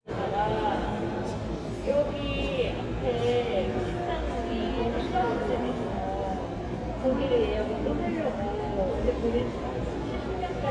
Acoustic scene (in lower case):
crowded indoor space